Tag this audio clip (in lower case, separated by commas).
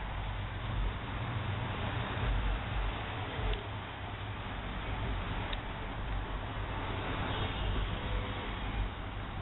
vehicle, car